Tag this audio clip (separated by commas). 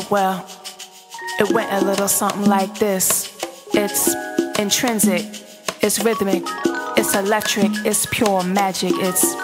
Middle Eastern music, Soundtrack music, Music